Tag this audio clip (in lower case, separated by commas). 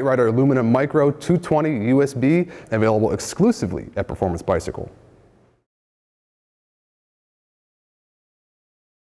speech